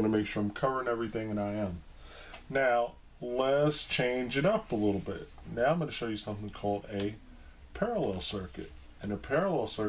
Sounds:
inside a small room, Speech

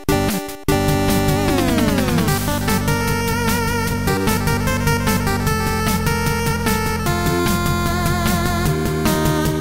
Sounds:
Music, Soundtrack music

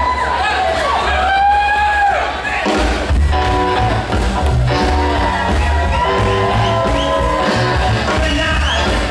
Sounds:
Music

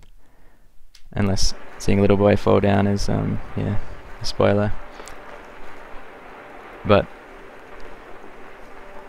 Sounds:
Speech

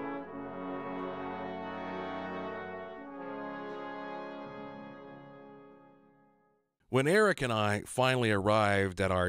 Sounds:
Music, Speech

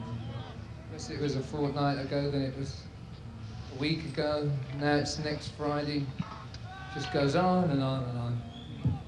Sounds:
Speech

